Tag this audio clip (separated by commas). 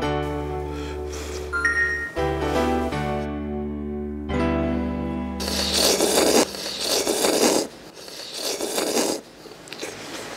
people eating noodle